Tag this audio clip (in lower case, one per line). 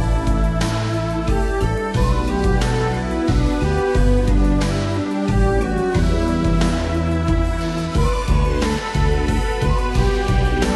music